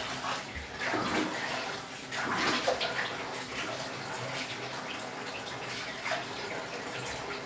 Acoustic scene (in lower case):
restroom